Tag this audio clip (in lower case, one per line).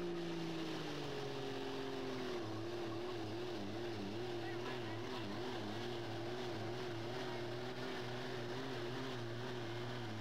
vehicle
truck
speech